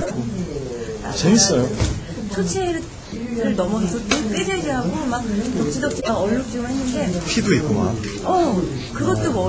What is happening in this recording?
Man and woman speaking